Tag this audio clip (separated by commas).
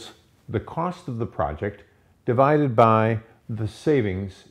Speech